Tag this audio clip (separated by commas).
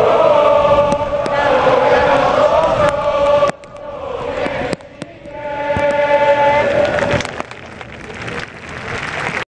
Mantra